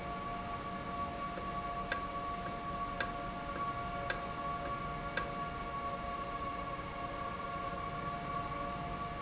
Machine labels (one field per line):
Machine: valve